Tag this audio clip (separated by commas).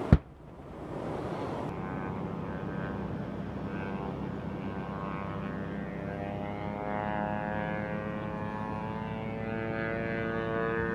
missile launch